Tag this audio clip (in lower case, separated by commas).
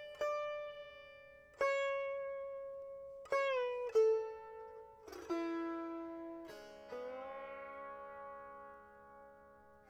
music, musical instrument, plucked string instrument